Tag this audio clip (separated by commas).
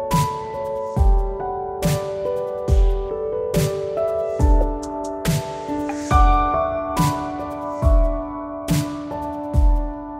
Music